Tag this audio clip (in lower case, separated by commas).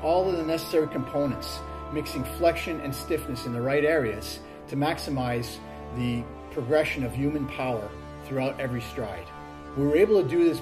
music, speech